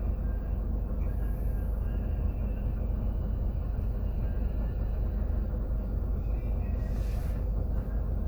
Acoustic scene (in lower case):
bus